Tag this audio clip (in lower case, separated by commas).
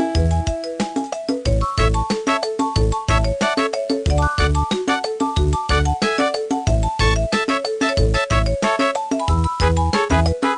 music